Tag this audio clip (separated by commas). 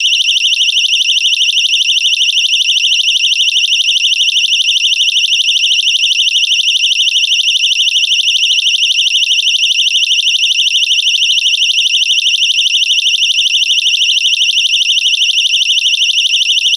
Siren, Alarm